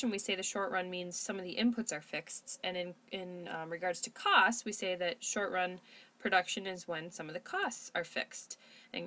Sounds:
Speech

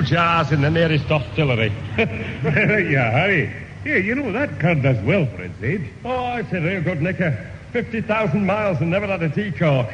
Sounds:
Radio, Speech

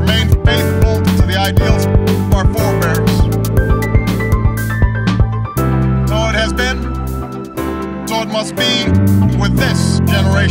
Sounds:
Music, Speech, Male speech

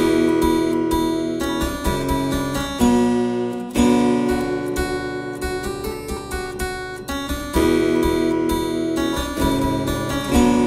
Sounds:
playing harpsichord

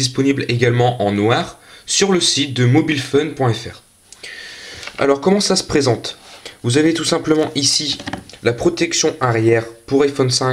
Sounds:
Speech

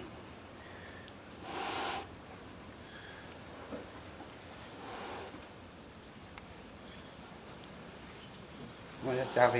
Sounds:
cat hissing

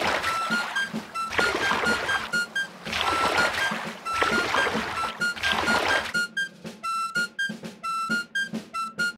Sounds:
Water vehicle, Music

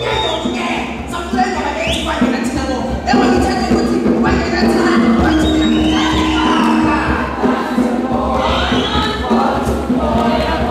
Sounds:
Music, Speech

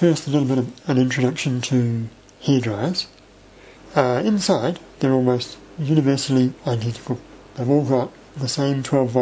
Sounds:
Speech

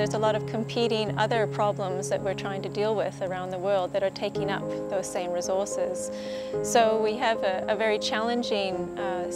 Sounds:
Music, Speech

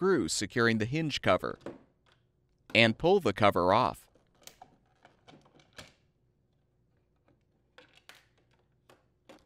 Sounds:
Speech

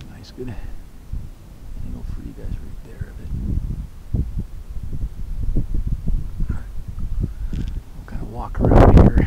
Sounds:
Speech

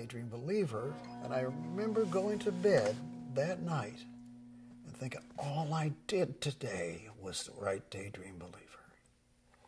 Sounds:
Speech

